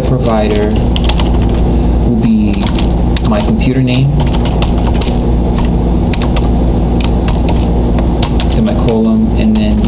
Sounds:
typing
speech

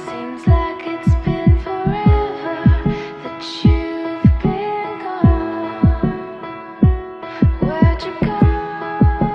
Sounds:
music

